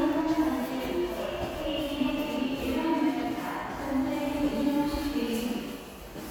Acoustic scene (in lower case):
subway station